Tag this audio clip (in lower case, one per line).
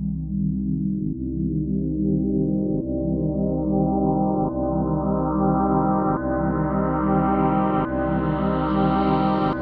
electronic music
music